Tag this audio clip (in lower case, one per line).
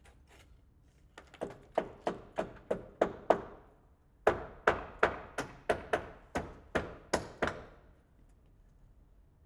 wood
tools
hammer